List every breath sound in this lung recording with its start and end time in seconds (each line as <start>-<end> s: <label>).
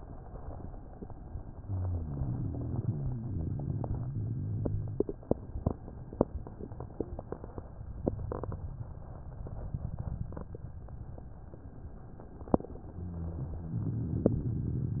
1.50-5.12 s: rhonchi
12.92-15.00 s: rhonchi